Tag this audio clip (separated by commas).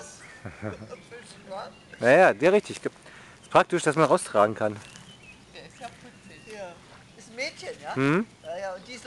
Speech